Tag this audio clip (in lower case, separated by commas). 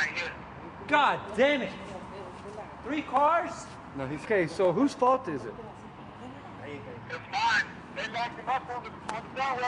speech